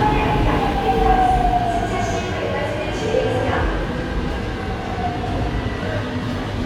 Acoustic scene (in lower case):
subway station